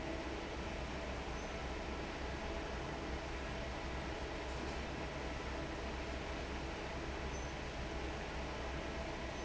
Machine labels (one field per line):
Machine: fan